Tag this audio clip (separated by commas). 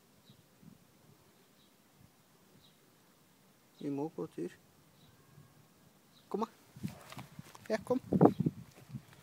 Speech